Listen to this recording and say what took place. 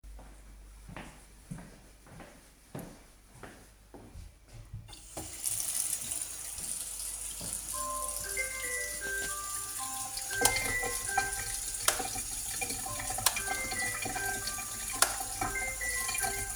I went to the sink and turned on the water. Then my phone rang, but the light shut off, and I tried to turn it on a few times.